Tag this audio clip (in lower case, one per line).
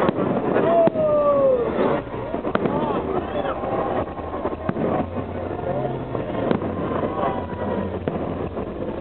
speech
fireworks